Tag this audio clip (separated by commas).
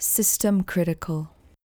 Female speech, Speech, Human voice